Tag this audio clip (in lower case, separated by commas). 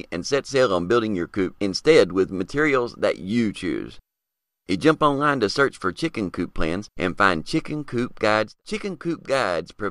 speech